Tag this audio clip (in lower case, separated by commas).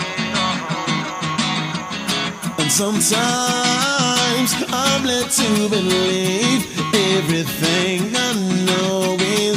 music, afrobeat